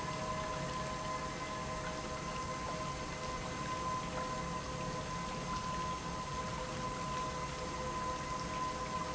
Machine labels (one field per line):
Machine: pump